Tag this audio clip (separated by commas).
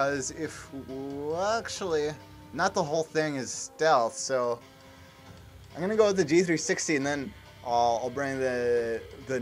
Speech